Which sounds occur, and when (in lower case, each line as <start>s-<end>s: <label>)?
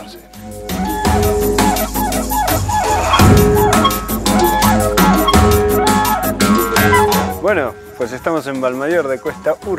0.0s-9.7s: music
7.3s-7.8s: male speech
7.9s-9.7s: male speech